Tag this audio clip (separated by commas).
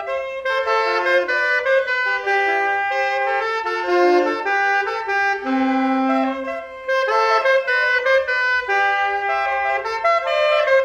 Saxophone, Music